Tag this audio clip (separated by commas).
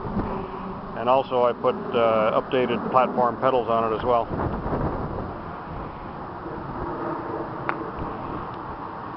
Speech